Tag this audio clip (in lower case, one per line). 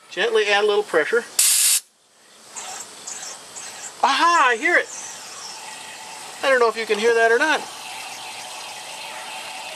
water